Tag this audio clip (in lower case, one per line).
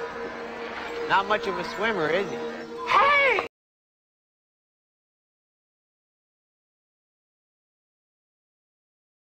speech